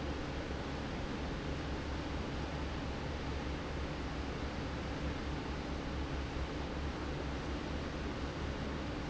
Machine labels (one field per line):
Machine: fan